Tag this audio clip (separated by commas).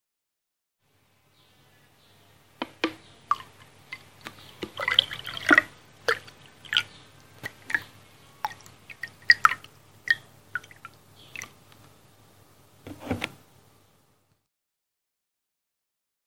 Engine, Pour, Wild animals, bird call, tweet, Tap, Animal, Liquid, Fill (with liquid), Bird, dribble